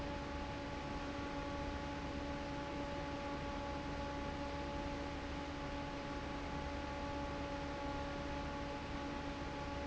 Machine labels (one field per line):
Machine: fan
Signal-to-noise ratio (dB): 0 dB